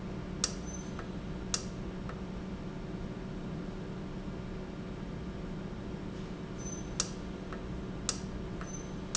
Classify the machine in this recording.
valve